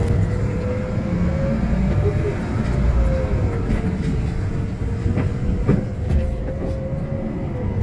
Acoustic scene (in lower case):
bus